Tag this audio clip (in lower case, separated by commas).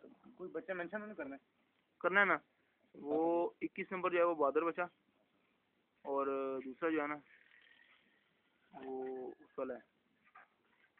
speech